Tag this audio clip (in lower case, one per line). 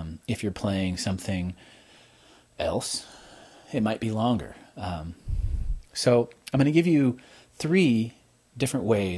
speech